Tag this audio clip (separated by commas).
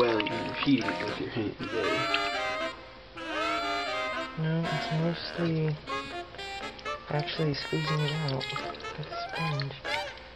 inside a small room, Music, Water, Speech